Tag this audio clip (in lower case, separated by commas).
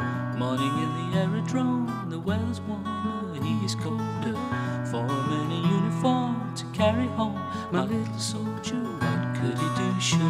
musical instrument, guitar, music, plucked string instrument